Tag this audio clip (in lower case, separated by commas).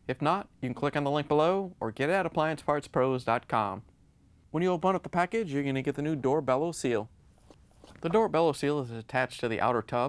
speech